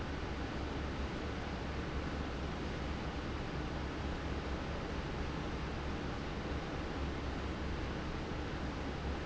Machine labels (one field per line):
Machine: fan